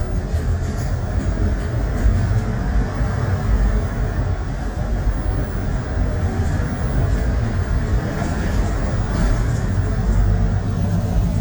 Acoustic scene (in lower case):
bus